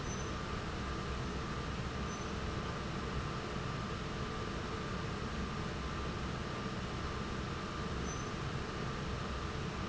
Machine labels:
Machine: fan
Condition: normal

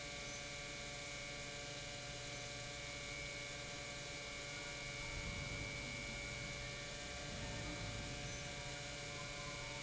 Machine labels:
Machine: pump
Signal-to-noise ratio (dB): 6 dB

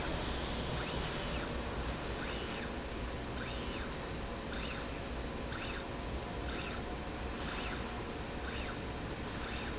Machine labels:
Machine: slide rail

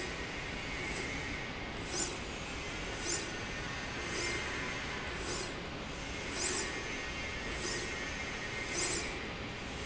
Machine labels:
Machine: slide rail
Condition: normal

